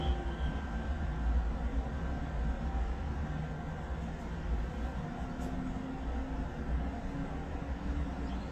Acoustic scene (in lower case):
residential area